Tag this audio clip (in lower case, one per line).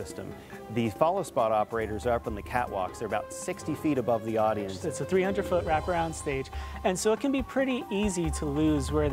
speech
music